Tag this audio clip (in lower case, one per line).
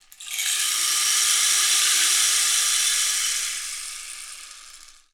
percussion
music
musical instrument
rattle (instrument)